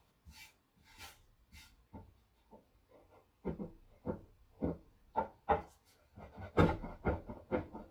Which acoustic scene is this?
kitchen